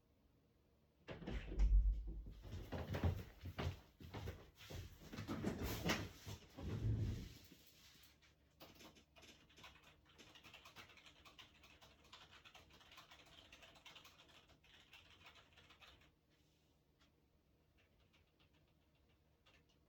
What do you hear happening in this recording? I opened the office door, went to my chair and sat down. Then I clicked with the mouse into some text field and wrote a text.